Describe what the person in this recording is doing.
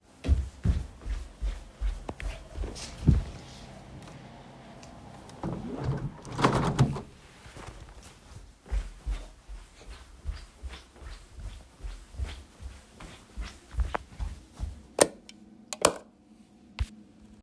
I walked to the window, opened it, went back and turned on the light